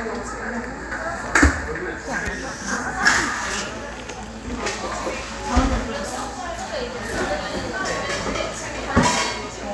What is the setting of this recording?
cafe